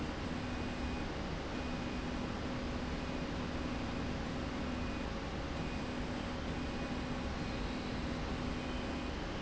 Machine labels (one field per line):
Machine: slide rail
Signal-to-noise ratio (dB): -6 dB